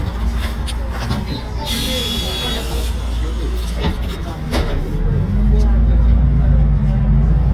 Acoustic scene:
bus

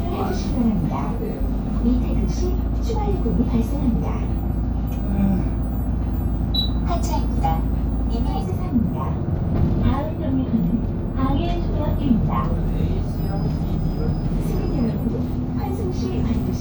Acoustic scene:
bus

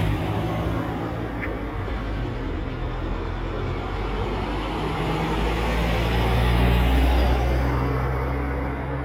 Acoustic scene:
street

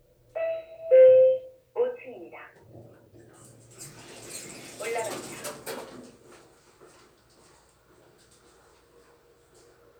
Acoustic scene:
elevator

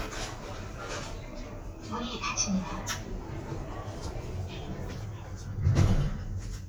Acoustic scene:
elevator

